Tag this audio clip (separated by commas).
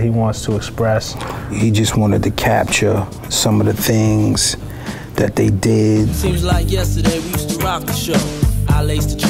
Speech, Music